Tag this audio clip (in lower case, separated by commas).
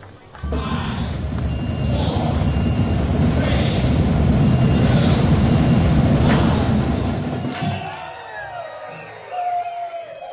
speech